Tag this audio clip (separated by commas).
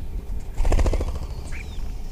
Wild animals, Bird, Animal